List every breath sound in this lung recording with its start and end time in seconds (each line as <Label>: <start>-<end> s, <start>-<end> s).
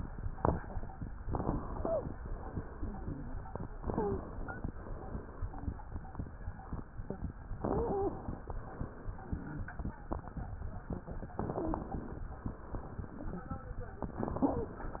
Inhalation: 1.20-2.17 s, 3.78-4.75 s, 7.59-8.56 s, 11.37-12.33 s, 14.12-15.00 s
Wheeze: 1.71-2.10 s, 3.87-4.26 s, 7.68-8.21 s, 11.52-11.96 s, 14.40-14.85 s